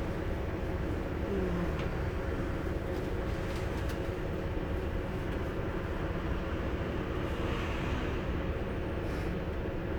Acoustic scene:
bus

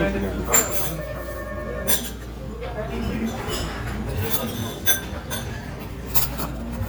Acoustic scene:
restaurant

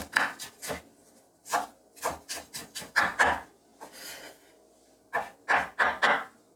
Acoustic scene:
kitchen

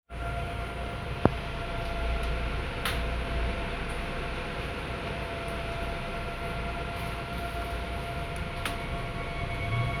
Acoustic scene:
subway train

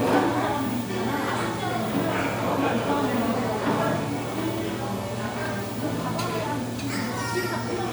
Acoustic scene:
crowded indoor space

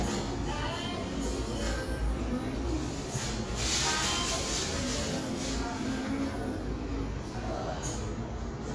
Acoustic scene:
cafe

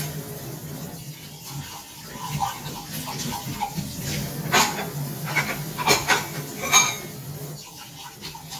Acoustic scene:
kitchen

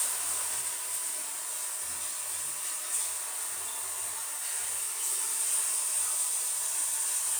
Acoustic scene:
restroom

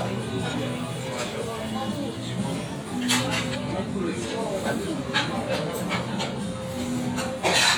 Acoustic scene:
restaurant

